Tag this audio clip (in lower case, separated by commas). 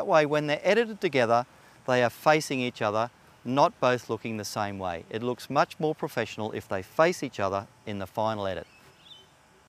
speech